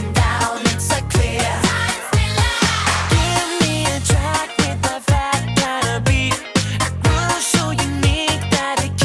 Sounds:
Singing, Music

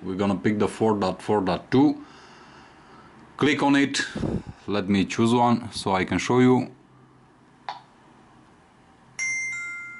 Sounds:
Speech, inside a small room

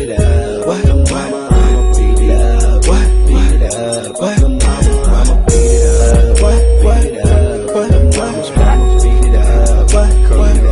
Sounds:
Music

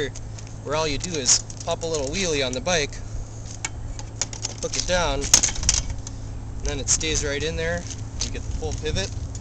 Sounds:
Vehicle, Speech, Bicycle

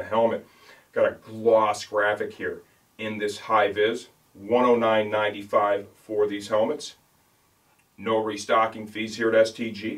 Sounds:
Speech

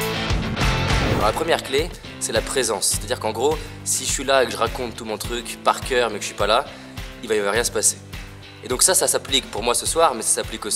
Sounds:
Music, Speech

